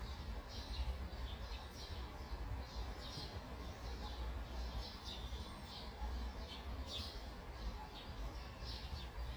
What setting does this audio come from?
park